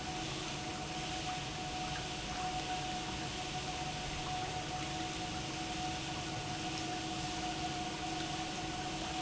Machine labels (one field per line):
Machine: pump